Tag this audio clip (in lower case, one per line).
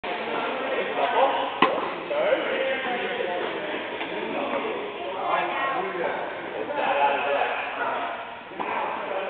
playing tennis